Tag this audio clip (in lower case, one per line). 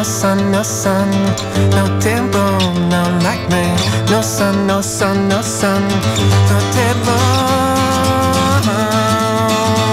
music